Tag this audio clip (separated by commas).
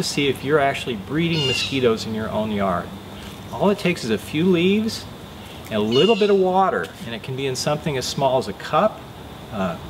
Speech